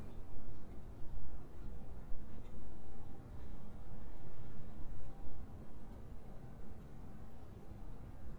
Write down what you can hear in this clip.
background noise